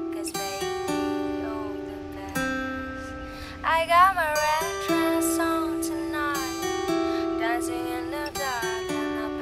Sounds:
Music, New-age music

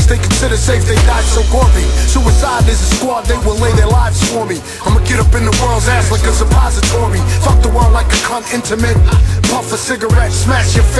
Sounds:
Music

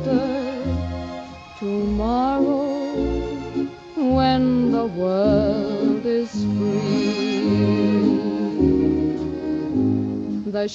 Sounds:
Music, Vocal music

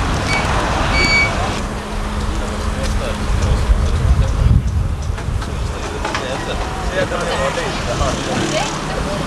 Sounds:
Vehicle, Speech

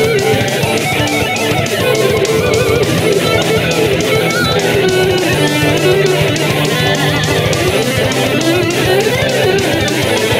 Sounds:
Music, Guitar, Musical instrument

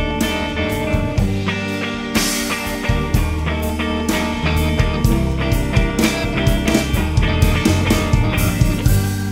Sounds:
Music, Rock music

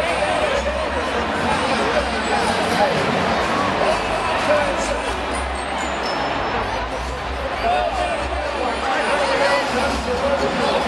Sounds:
Music, Speech

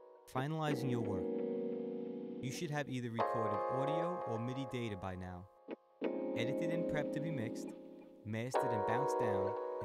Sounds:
Speech

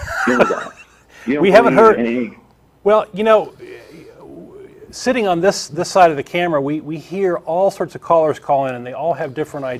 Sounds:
Speech

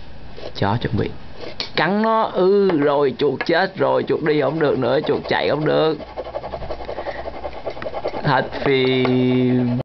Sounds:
Speech

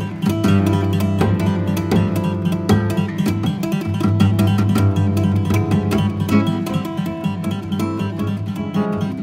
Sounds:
Plucked string instrument, Guitar, Music, Acoustic guitar, Musical instrument

